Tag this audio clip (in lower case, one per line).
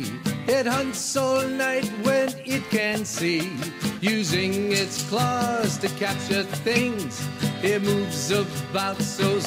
music